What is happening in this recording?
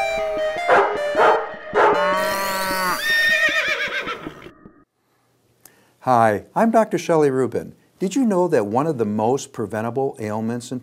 Music with dog barking and horse neighing followed by a man speaking